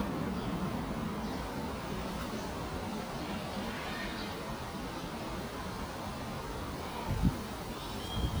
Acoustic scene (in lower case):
residential area